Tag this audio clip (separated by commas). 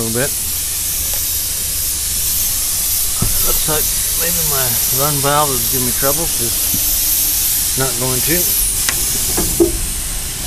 Hiss, snake hissing, Speech